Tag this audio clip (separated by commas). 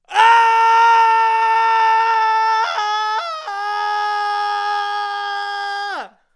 Screaming, Human voice